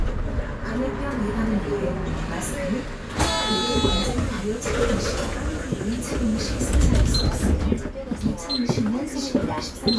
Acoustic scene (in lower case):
bus